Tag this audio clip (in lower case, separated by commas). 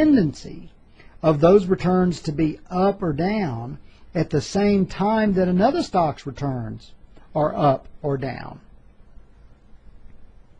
speech